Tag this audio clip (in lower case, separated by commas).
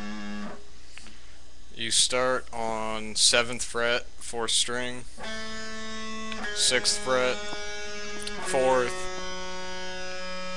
music, speech